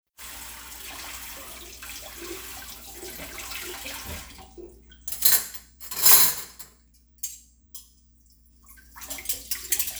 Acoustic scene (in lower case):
kitchen